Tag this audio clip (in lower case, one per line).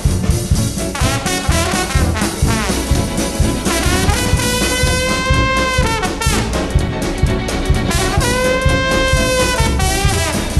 brass instrument
trombone